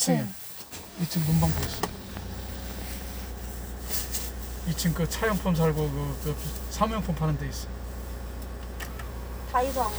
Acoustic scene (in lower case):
car